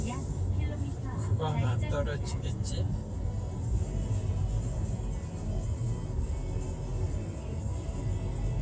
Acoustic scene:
car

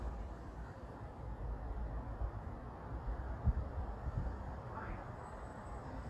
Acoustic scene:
residential area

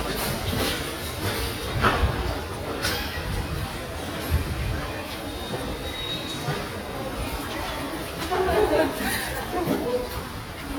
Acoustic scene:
subway station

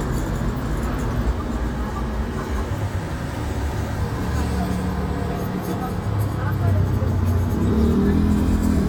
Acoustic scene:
street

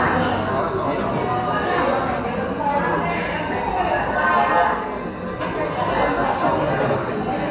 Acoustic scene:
cafe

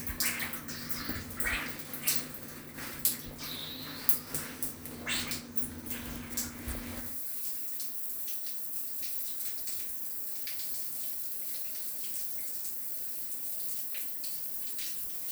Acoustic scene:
restroom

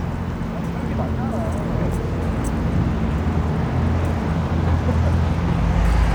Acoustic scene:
street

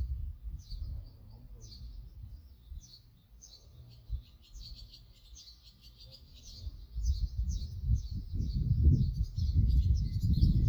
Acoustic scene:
park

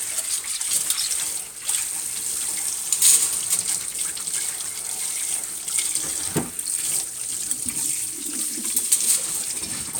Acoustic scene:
kitchen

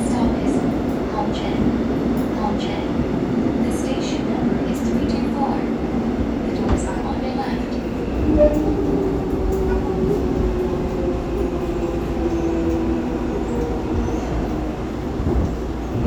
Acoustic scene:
subway train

